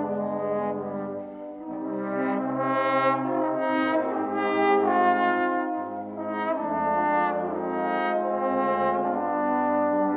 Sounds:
music, trombone, brass instrument

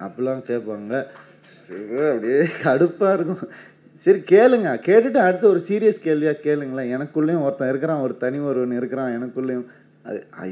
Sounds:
speech, laughter

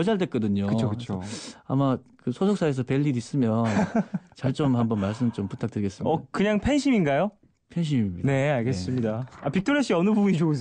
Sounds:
speech

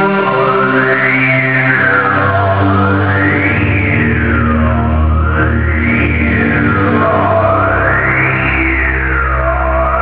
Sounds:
techno, music

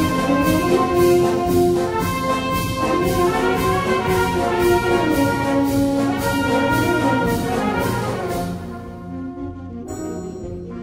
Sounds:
brass instrument, trombone, french horn, trumpet

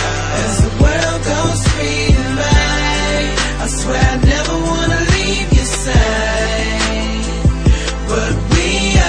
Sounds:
music

